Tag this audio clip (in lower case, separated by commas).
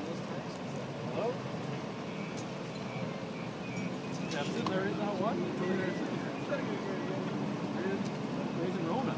vehicle, speech, car